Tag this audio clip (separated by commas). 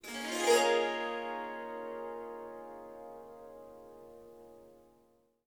Music, Musical instrument, Harp